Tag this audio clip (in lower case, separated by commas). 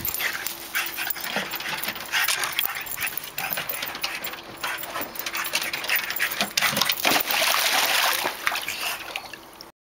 water